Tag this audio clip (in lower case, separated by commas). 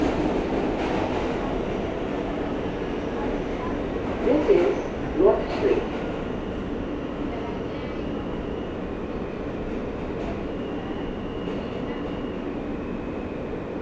underground, rail transport, vehicle